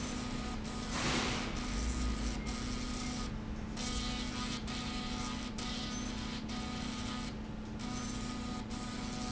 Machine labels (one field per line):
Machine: slide rail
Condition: abnormal